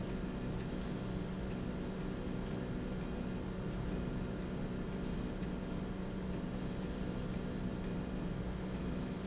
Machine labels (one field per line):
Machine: slide rail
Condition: normal